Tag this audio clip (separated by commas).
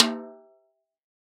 Music, Drum, Musical instrument, Percussion, Snare drum